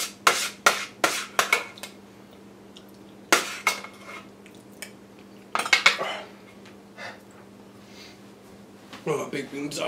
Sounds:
speech, inside a small room

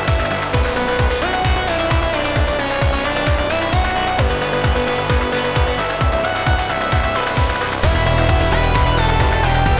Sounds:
electronica, music

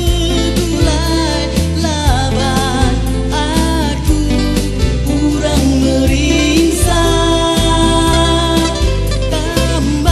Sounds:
musical instrument, music, singing

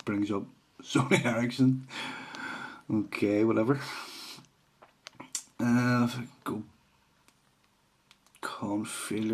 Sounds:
speech

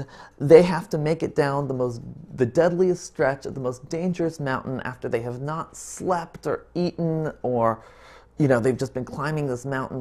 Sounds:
speech

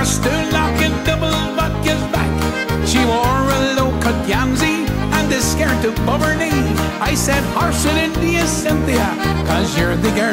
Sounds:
music

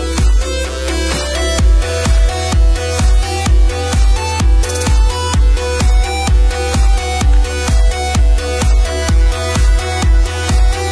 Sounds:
music

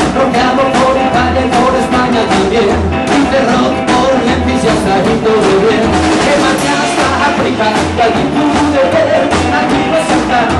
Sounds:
music

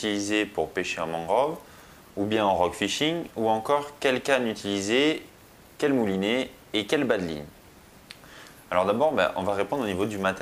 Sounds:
speech

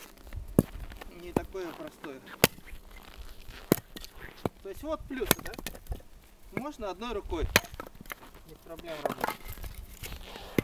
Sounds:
chopping wood

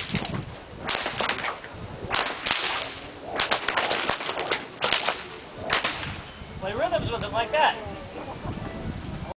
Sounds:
whip

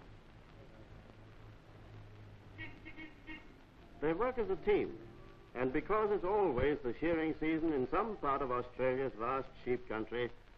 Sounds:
speech

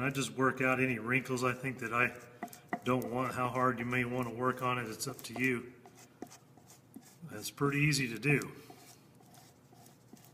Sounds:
rub

